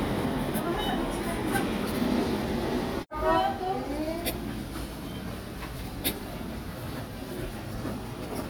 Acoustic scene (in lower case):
subway station